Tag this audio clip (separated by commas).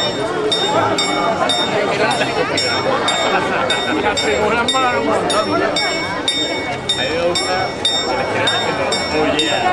Speech